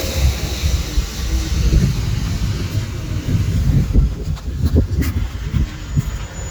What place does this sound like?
residential area